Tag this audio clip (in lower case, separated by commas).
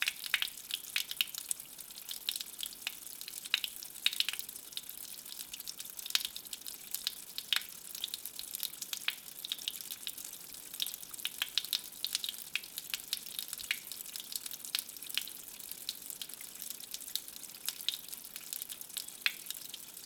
water, stream